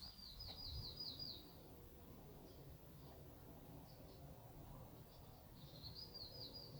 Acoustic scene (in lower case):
park